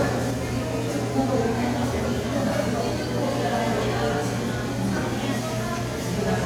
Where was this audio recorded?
in a crowded indoor space